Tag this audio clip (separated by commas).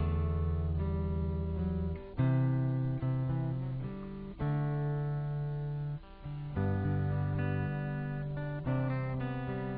Musical instrument, Music, Guitar, Plucked string instrument